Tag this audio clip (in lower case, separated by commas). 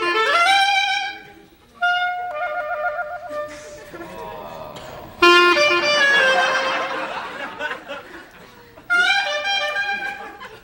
playing clarinet